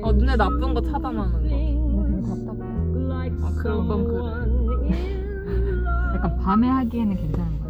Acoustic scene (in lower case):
car